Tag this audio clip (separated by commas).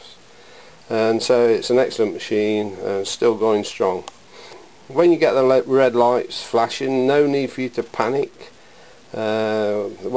Speech